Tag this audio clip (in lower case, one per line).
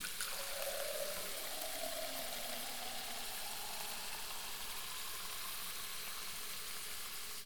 liquid
fill (with liquid)